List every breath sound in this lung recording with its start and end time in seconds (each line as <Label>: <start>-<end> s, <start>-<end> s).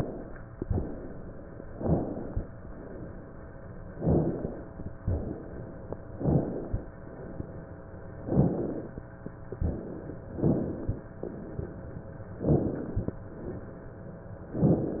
Inhalation: 1.79-2.49 s, 3.95-4.65 s, 6.17-6.87 s, 8.27-8.97 s, 10.36-11.06 s, 12.46-13.16 s
Exhalation: 0.59-1.61 s, 2.54-3.72 s, 5.04-6.05 s, 7.08-8.13 s, 9.62-10.20 s, 11.20-12.28 s, 13.30-14.38 s